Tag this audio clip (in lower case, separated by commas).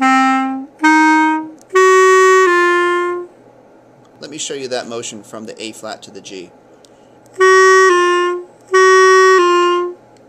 playing clarinet